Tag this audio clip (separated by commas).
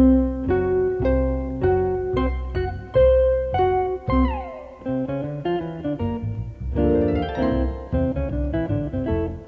Music